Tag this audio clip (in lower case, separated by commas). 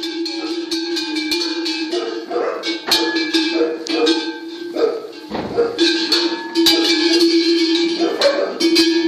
animal, livestock